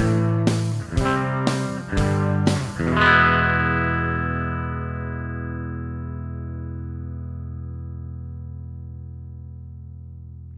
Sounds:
musical instrument, guitar, plucked string instrument, music

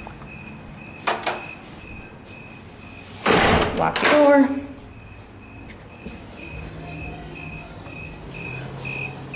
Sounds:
insect, cricket

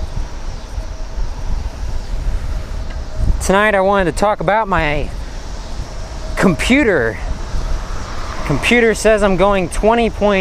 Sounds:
vehicle, speech, bicycle

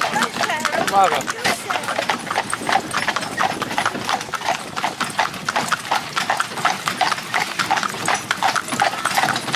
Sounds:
horse clip-clop

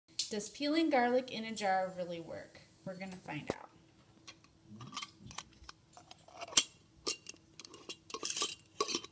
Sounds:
inside a small room, speech

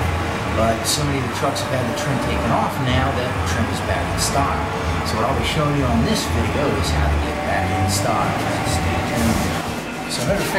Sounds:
speech, music

